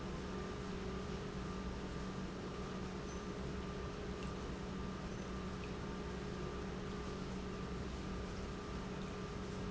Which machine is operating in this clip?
pump